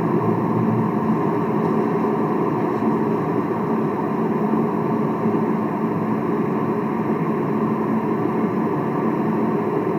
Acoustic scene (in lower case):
car